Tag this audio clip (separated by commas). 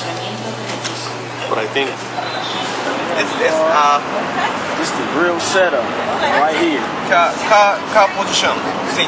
Speech